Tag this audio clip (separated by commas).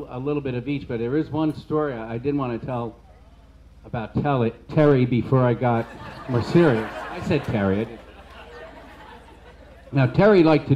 Narration, Male speech, Speech